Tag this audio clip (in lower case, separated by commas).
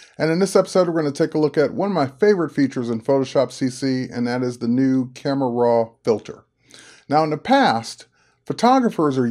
speech